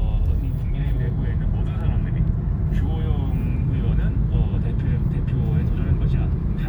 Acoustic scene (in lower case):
car